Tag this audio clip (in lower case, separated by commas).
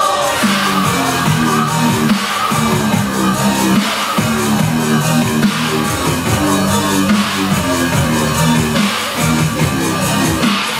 music, dubstep